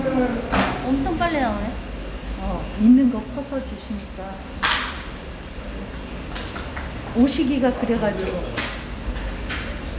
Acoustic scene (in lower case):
restaurant